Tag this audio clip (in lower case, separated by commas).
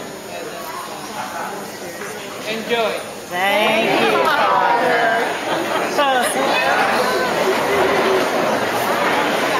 chatter, inside a public space, speech